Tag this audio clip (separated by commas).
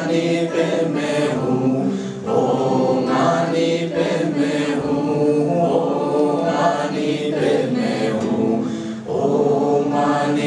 Music, Chant, Mantra